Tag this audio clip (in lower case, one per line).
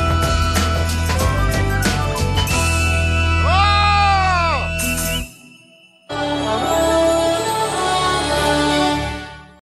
music